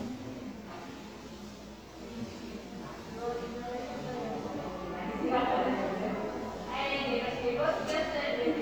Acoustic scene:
crowded indoor space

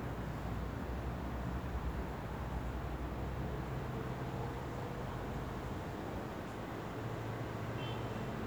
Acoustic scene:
residential area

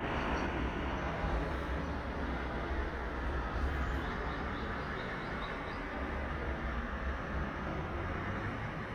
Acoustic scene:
street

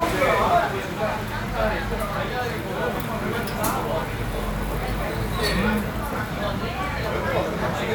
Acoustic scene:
restaurant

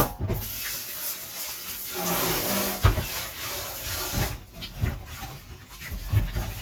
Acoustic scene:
kitchen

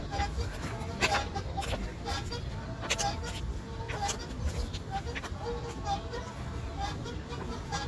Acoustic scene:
park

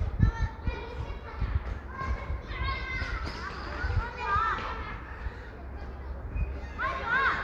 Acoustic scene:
residential area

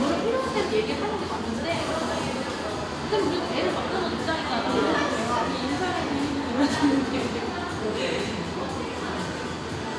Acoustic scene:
cafe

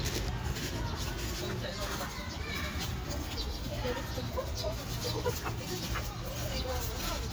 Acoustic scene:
park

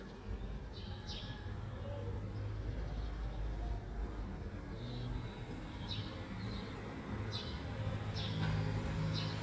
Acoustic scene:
residential area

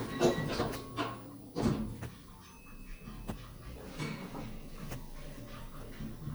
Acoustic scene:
elevator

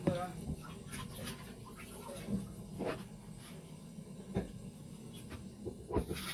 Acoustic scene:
kitchen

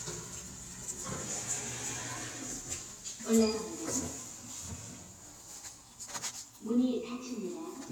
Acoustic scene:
elevator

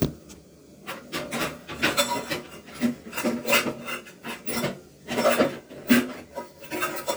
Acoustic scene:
kitchen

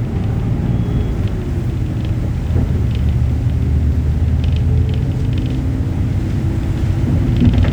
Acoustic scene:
bus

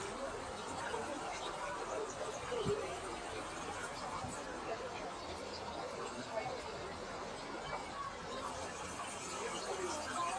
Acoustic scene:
park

